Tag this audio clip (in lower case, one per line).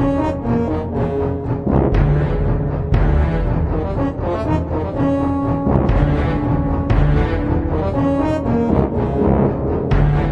music